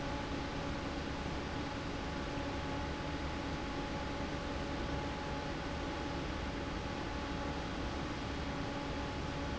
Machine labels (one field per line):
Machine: fan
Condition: normal